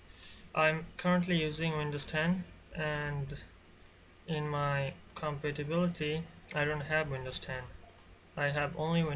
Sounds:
Speech

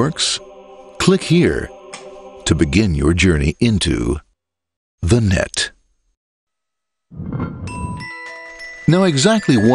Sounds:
Music, Speech, Ding-dong

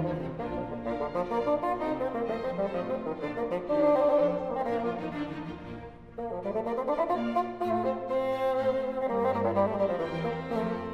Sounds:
playing bassoon

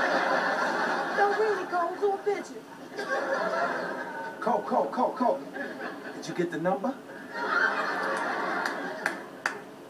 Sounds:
Speech

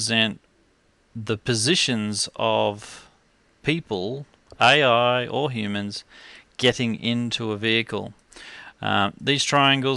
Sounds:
Speech

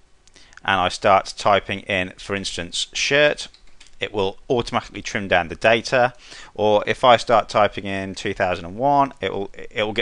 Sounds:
Speech

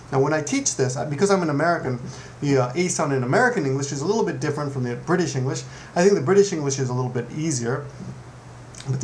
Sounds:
Speech

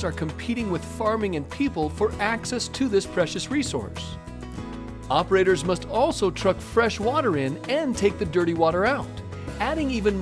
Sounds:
Music, Speech

